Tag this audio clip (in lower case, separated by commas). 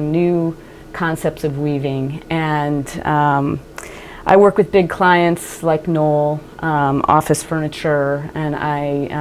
speech